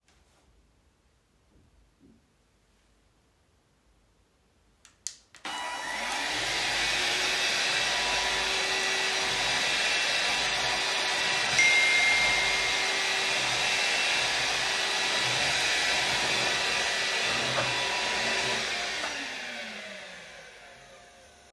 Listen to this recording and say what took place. I pressed the vacuum cleaner’s power button to start it. I began vacuuming and at the same time, a notification sound went off. I kept vacuuming until I turned the vacuum cleaner off.